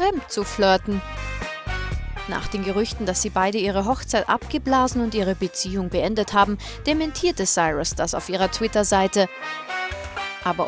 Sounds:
Music, Speech

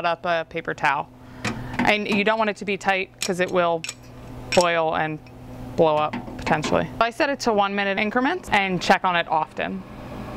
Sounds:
Speech

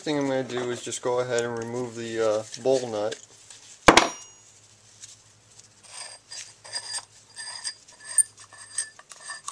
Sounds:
Speech

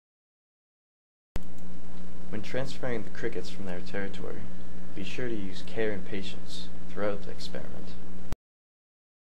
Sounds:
Speech

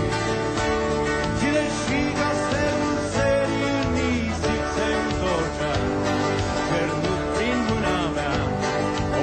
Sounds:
Musical instrument, Music

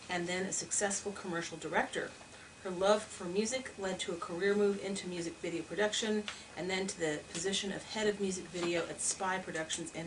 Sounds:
Speech

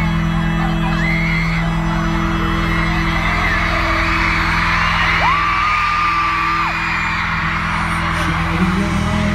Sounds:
Crowd, Cheering

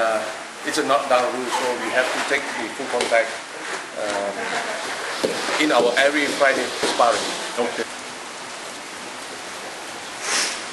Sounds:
Speech, inside a large room or hall

